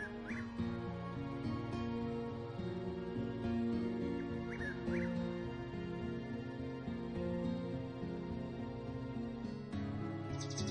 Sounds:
music

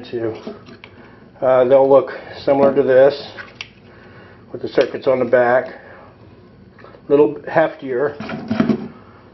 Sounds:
speech

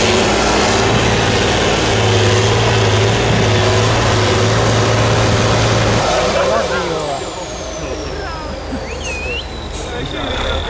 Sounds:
truck
vehicle
speech

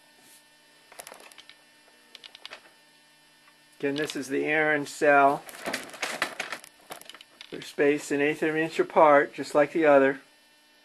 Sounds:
speech

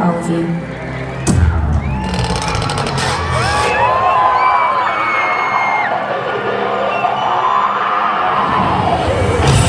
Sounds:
speech
monologue
woman speaking
music

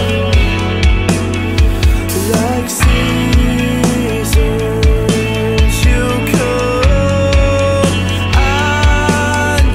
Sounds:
music

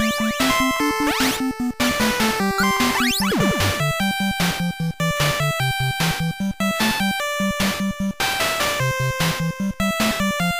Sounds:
music

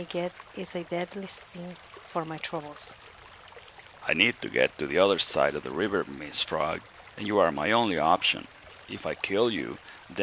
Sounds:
speech

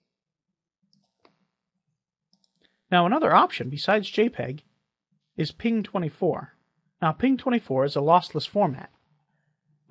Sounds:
monologue
speech

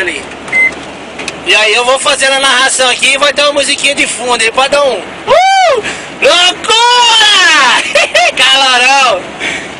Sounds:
speech

